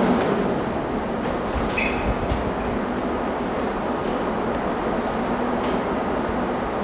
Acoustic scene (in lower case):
subway station